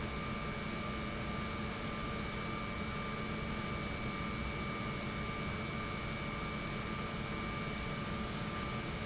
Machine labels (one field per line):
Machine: pump